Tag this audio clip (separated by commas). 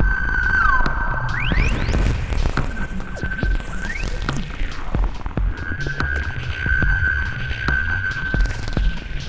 Throbbing